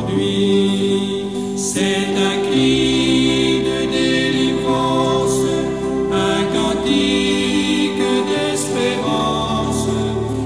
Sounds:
music, mantra

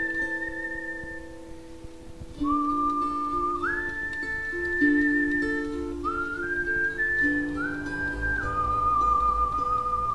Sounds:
harp, whistling, people whistling, music

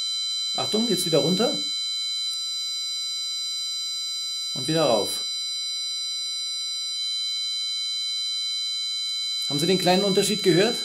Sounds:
speech

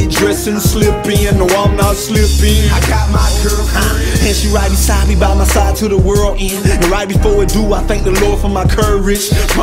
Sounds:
music

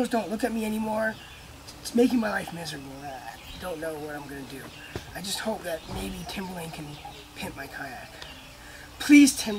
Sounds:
speech

